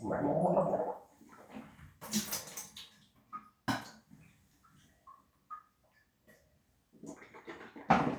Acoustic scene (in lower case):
restroom